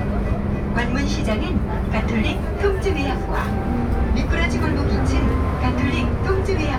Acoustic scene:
bus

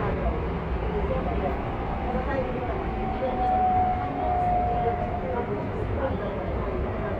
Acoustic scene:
subway train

